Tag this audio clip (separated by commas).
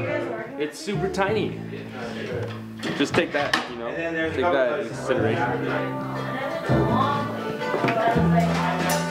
Speech, Music